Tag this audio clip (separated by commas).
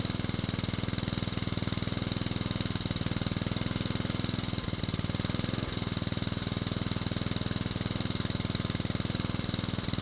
Engine